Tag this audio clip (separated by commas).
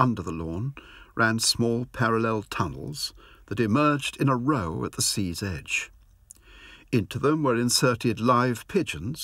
Speech